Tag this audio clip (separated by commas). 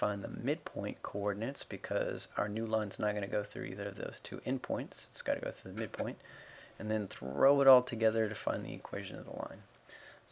Speech